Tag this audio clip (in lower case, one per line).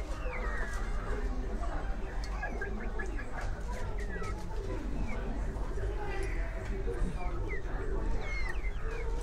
speech
inside a small room